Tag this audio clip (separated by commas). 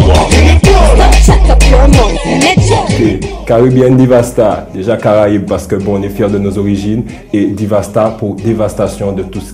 Speech, Music